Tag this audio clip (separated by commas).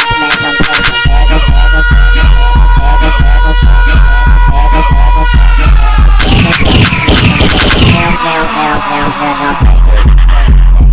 Music